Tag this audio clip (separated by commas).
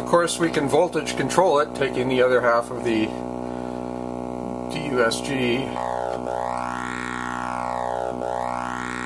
Speech